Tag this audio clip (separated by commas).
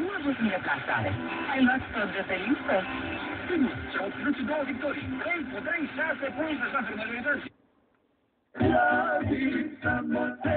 Music, Radio, Speech